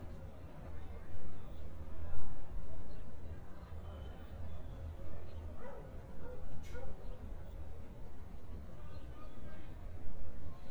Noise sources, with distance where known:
dog barking or whining, far

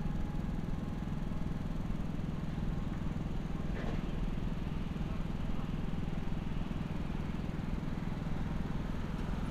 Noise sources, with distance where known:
medium-sounding engine, far

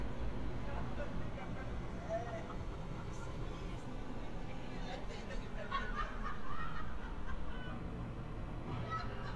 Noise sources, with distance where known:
person or small group talking

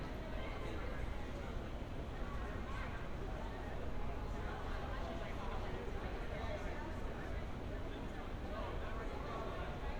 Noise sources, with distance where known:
background noise

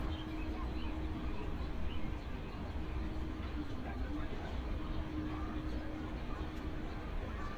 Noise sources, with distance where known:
engine of unclear size, near
person or small group shouting, far

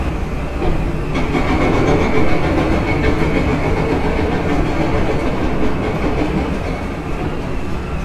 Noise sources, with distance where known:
jackhammer, near

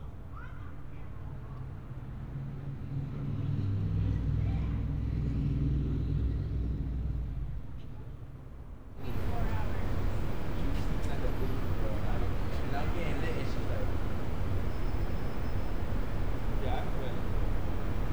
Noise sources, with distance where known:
person or small group talking

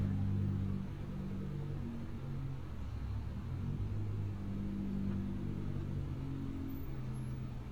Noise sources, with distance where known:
large-sounding engine, far

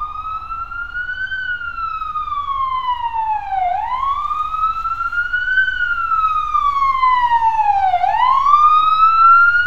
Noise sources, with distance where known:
siren, near

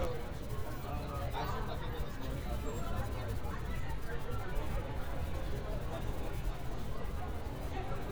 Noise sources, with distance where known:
large crowd

